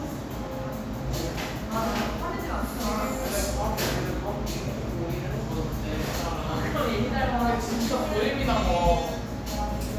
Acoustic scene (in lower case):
cafe